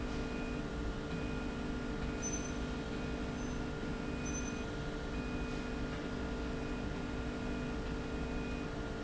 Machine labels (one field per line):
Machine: slide rail